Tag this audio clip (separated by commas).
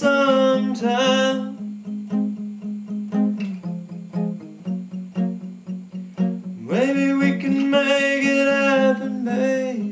Music